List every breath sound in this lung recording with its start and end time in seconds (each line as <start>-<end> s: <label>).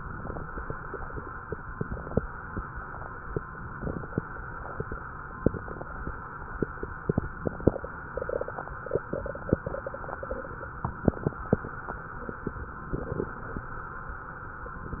0.00-0.68 s: inhalation
0.00-0.68 s: crackles
1.49-2.17 s: inhalation
1.49-2.17 s: crackles
3.52-4.20 s: inhalation
3.52-4.20 s: crackles
5.39-6.07 s: inhalation
5.39-6.07 s: crackles
7.06-7.74 s: inhalation
7.06-7.74 s: crackles
9.01-9.69 s: inhalation
9.01-9.69 s: crackles
10.88-11.56 s: inhalation
10.88-11.56 s: crackles
12.95-13.63 s: inhalation
12.95-13.63 s: crackles
14.94-15.00 s: inhalation
14.94-15.00 s: crackles